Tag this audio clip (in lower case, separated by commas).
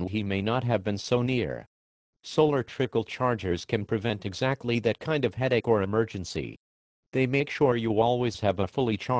speech